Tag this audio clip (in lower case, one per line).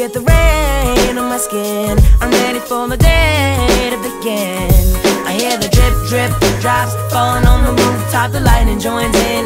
music